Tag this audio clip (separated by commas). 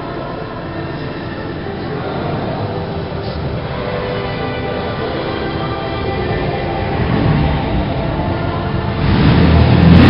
Music